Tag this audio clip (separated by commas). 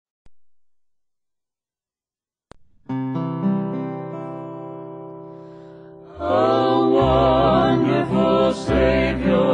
Music, Strum